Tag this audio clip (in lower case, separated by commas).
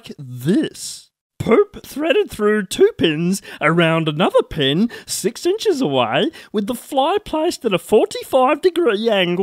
speech